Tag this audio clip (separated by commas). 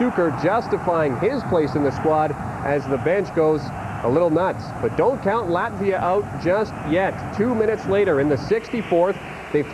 Speech